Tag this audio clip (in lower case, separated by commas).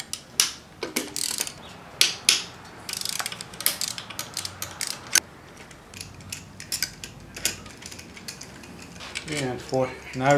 speech, inside a large room or hall